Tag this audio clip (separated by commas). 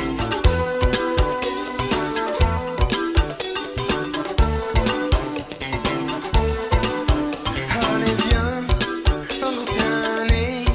Soul music, Music